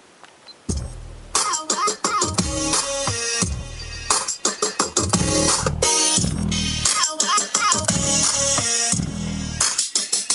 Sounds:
Music

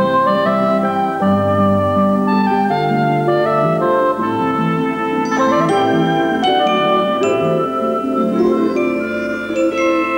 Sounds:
Glockenspiel, Marimba, Mallet percussion

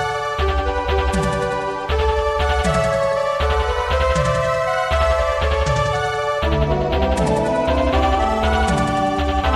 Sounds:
Music, Video game music, Theme music

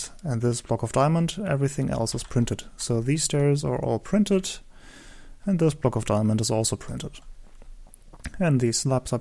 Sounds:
Speech

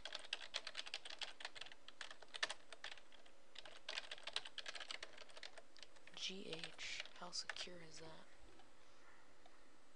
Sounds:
Computer keyboard, Typing

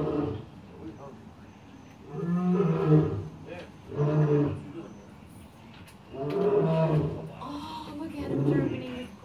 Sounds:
lions roaring

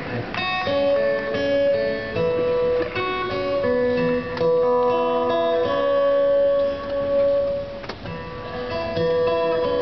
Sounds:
Music

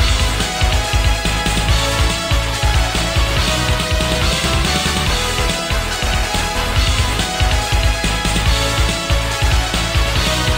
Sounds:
Music

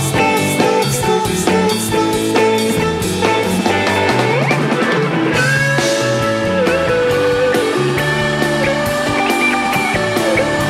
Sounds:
Blues, Music, Singing

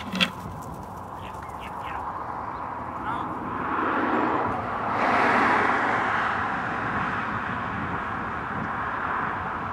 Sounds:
Speech

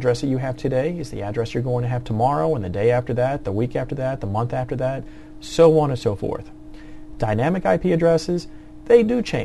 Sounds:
Speech

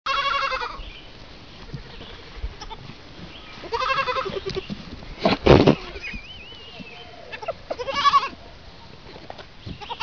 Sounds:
sheep bleating

